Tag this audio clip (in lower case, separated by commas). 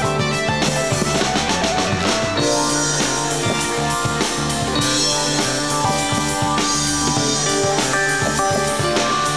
music, progressive rock